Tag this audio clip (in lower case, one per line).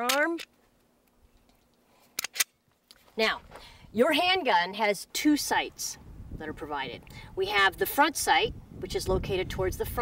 outside, rural or natural
speech